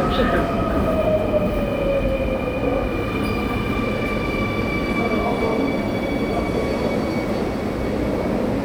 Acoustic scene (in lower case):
subway train